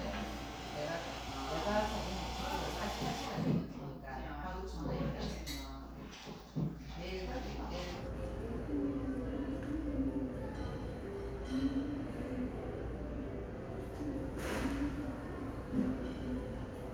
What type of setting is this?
crowded indoor space